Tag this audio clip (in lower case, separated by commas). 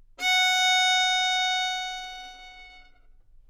music, musical instrument, bowed string instrument